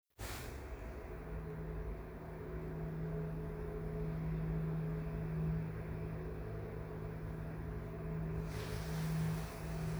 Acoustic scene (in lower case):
elevator